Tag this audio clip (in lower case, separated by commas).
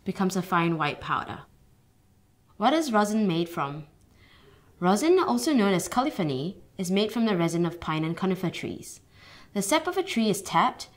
speech